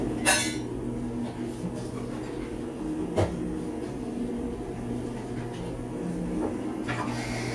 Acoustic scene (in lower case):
cafe